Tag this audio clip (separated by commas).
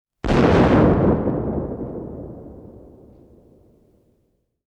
Explosion